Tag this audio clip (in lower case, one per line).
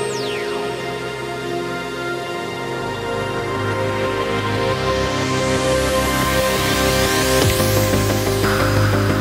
ambient music
music